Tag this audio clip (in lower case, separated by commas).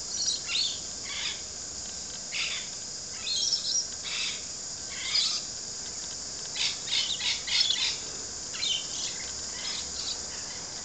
domestic animals, outside, rural or natural, bird